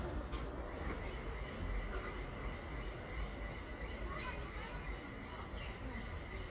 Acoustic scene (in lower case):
residential area